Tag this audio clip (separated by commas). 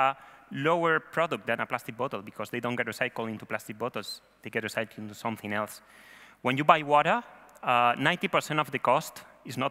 Speech